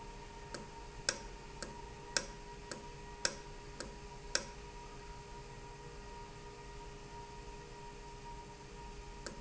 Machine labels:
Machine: valve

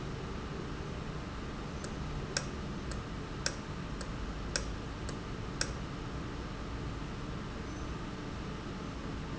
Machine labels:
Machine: valve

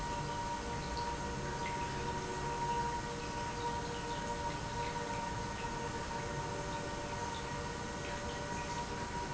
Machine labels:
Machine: pump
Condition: normal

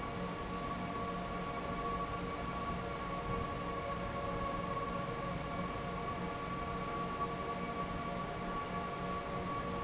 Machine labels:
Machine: fan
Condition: normal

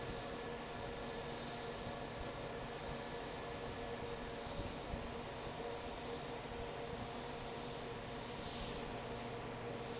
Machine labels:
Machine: fan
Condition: normal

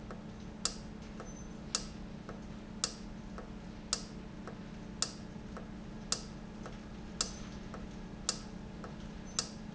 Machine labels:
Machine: valve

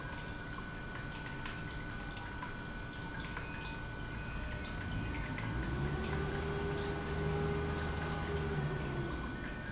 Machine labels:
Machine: pump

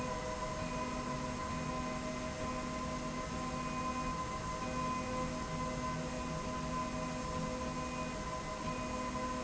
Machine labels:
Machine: slide rail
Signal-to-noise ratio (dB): -6 dB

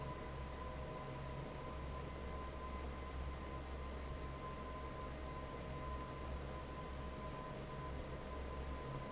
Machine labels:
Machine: fan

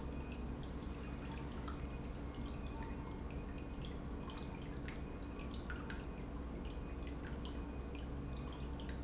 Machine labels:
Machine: pump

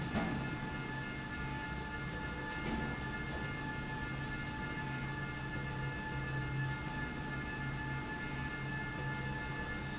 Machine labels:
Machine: slide rail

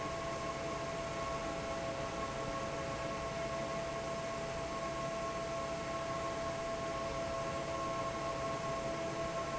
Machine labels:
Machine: fan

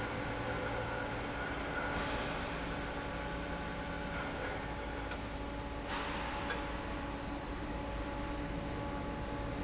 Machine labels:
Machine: fan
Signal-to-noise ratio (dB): -6 dB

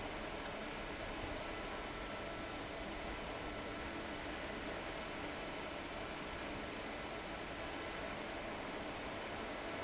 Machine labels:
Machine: fan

